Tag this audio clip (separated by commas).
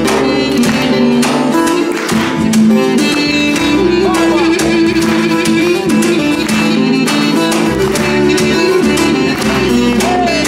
Speech, Music